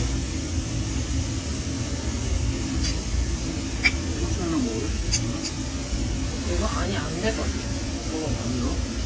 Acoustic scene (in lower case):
crowded indoor space